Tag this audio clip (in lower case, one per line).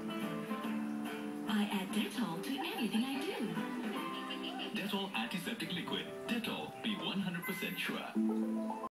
speech
music